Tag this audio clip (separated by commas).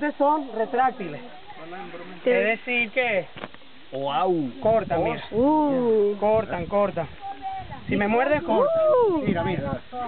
Speech, outside, rural or natural